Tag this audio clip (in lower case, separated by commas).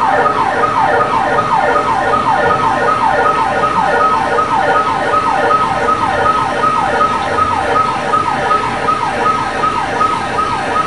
ambulance (siren), siren, emergency vehicle